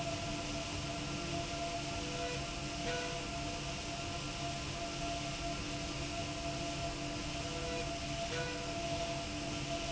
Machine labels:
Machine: slide rail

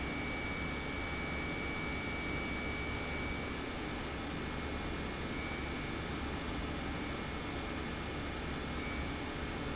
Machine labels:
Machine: pump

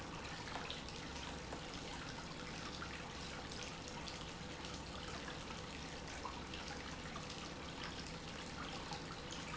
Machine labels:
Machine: pump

